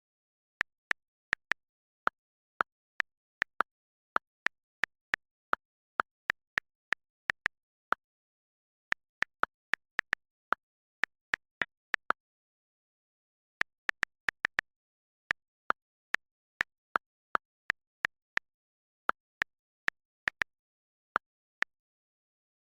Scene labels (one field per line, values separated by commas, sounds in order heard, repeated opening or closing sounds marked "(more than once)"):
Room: office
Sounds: keyboard typing, phone ringing